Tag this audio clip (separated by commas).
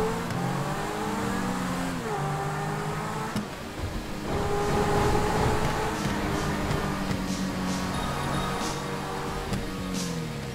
Music, Car, Vehicle